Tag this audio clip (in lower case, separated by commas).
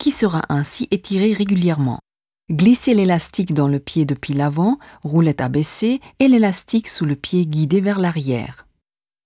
speech